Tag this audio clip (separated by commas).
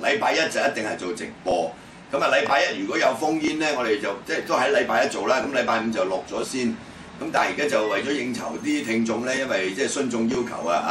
Speech